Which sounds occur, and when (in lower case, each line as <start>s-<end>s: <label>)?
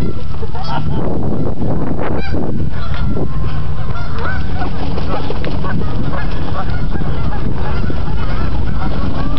0.0s-0.6s: laughter
0.0s-1.0s: quack
0.0s-9.3s: wind noise (microphone)
1.2s-1.5s: quack
2.0s-2.4s: quack
2.6s-3.2s: bird flight
2.6s-3.2s: quack
3.3s-4.7s: quack
4.0s-9.3s: bird flight
5.0s-5.3s: quack
5.5s-5.8s: quack
6.1s-9.3s: quack